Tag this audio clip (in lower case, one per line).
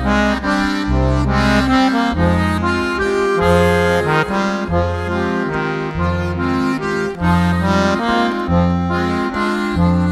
accordion
music